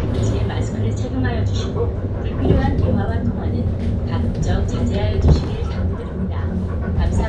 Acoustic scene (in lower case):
bus